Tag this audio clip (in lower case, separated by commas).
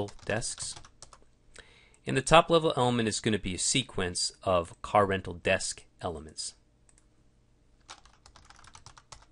speech